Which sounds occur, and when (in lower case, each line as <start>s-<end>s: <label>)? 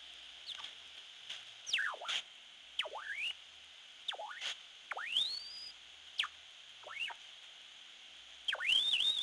0.0s-9.2s: mechanisms
1.3s-1.4s: generic impact sounds
8.5s-9.2s: sound effect